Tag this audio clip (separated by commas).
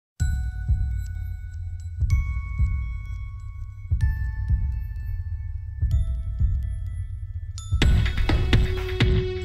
Music